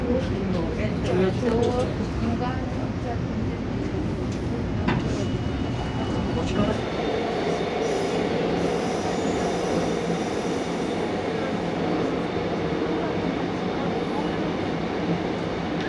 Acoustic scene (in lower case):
subway train